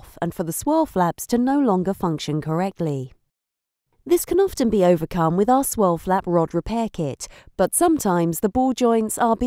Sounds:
speech

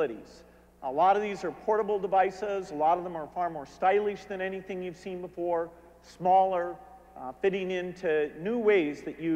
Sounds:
narration, speech, man speaking

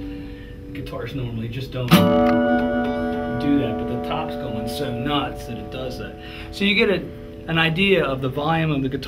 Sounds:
strum, guitar, speech, musical instrument

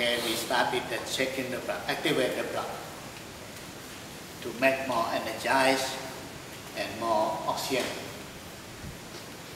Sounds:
speech

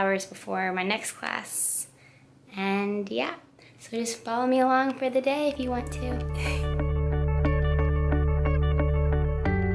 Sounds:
music, speech

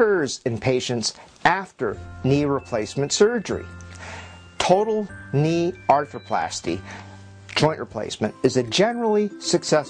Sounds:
music, speech

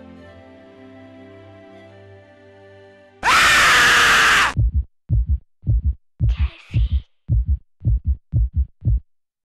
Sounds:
music, speech

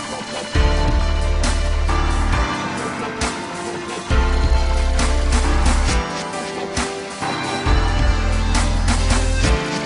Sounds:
electronic music, dubstep, music

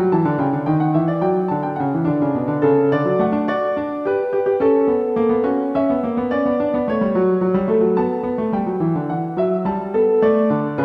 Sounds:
piano, electric piano, keyboard (musical), harpsichord, music

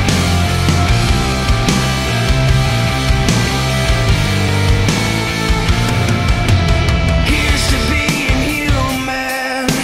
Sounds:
rimshot, percussion, bass drum, drum kit, snare drum, drum roll, drum

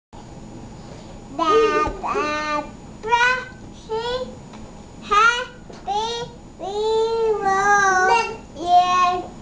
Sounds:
people babbling, babbling, speech

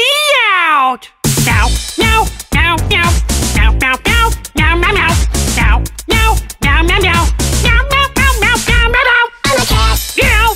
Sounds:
music

